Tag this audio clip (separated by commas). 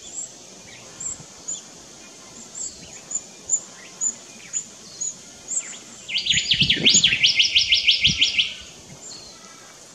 cuckoo bird calling